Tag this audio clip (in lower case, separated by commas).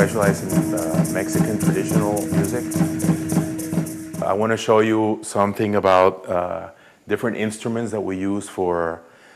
speech, music, percussion